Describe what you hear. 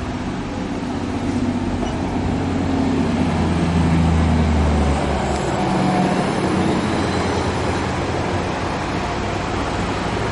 A large motor vehicle engine is running